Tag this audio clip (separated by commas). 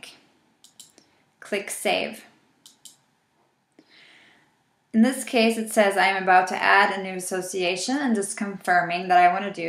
Speech